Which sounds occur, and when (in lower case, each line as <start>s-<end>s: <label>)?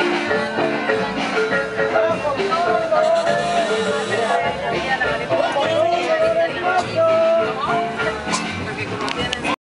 0.0s-9.5s: music
0.0s-9.5s: speech noise
1.9s-3.6s: shout
5.4s-7.4s: shout
8.2s-8.3s: generic impact sounds
9.0s-9.1s: tick
9.2s-9.3s: tick